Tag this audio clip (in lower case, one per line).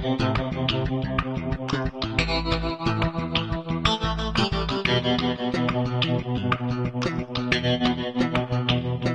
music